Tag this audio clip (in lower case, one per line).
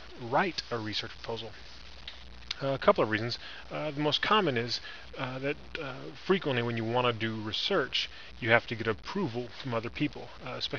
speech